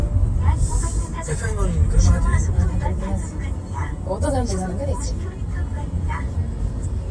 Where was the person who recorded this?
in a car